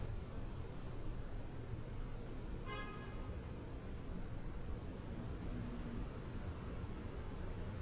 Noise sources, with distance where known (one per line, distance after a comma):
car horn, far